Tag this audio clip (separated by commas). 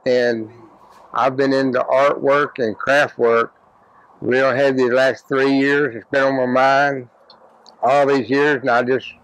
Speech